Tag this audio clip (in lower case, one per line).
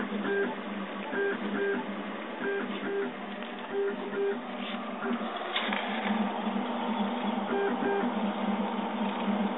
printer